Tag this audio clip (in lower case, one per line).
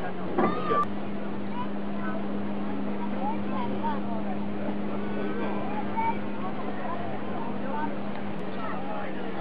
water vehicle